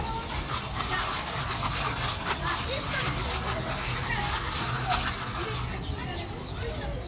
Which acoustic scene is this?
park